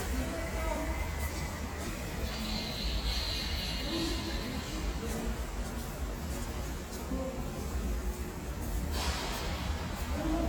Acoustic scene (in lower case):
subway station